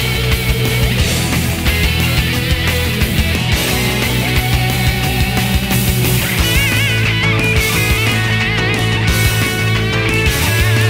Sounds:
Plucked string instrument, Guitar, Music, Musical instrument

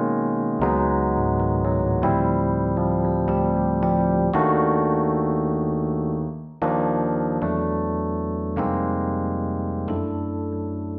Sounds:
Electric piano, Piano, Musical instrument, Music, Keyboard (musical), playing piano

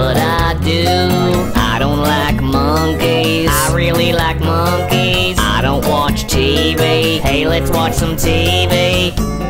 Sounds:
Music

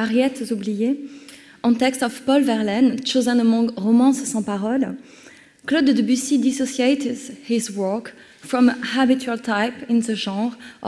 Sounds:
Speech

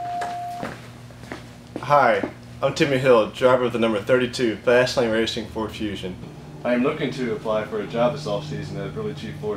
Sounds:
Speech

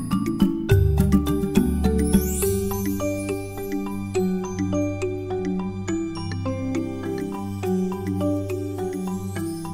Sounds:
Music

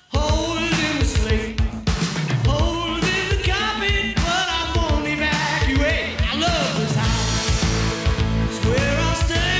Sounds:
Music

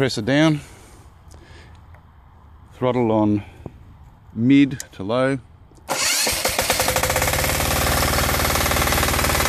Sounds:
Speech

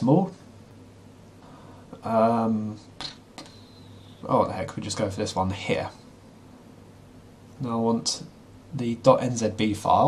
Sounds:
Speech

